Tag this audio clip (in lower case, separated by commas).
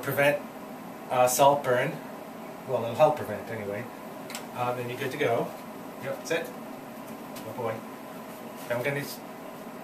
speech